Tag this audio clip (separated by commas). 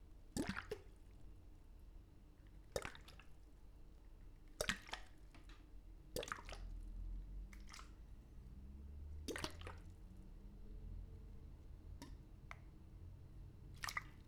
splatter, Liquid